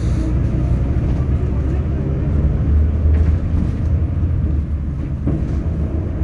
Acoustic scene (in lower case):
bus